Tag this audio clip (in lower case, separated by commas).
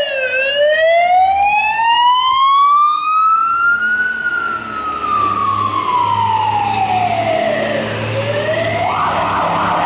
emergency vehicle, siren, fire truck (siren)